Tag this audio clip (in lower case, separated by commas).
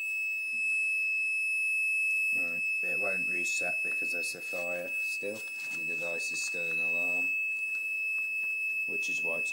fire alarm